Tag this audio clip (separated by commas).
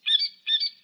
Wild animals, Animal, Bird, Squeak